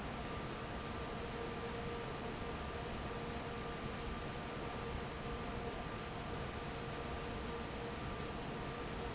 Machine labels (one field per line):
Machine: fan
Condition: normal